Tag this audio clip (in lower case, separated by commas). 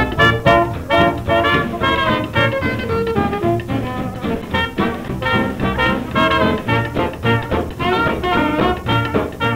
music, swing music